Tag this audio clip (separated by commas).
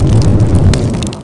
Fire